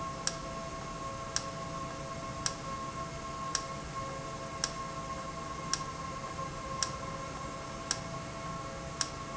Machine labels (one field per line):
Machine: valve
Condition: normal